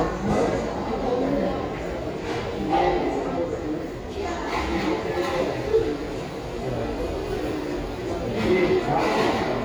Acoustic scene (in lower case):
crowded indoor space